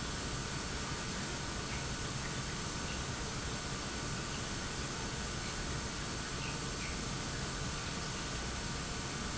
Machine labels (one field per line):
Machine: pump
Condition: normal